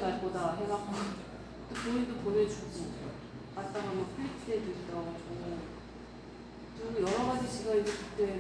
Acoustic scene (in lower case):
cafe